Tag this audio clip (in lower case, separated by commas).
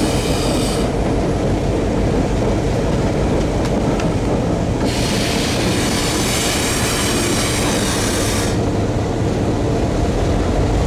train wagon, train, rail transport